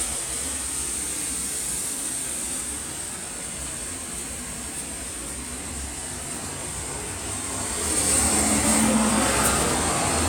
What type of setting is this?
street